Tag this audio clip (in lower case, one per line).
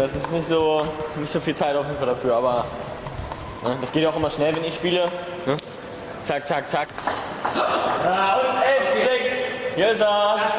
speech